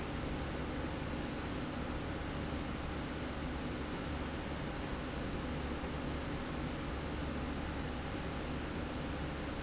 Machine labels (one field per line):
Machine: slide rail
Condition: normal